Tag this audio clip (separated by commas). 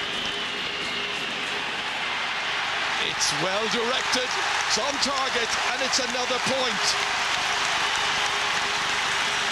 Speech